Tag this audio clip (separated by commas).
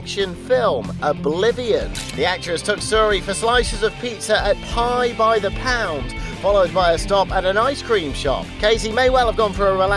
Speech, Music